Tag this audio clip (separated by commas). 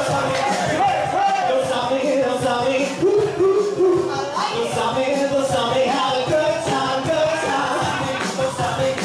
Male singing, Rapping, Music